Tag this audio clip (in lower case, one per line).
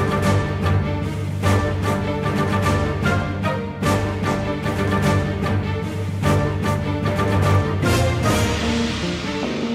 music